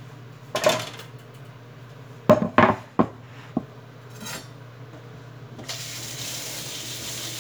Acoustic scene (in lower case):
kitchen